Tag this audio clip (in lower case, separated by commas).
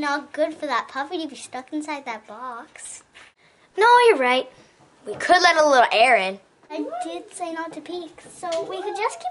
kid speaking, speech